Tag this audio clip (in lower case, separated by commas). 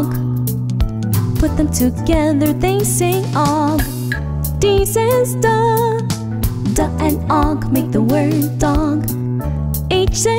music